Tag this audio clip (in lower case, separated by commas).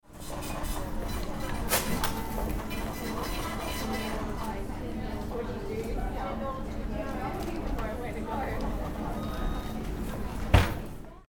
mechanisms